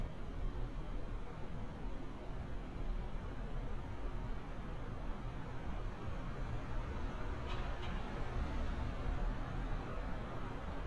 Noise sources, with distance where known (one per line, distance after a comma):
background noise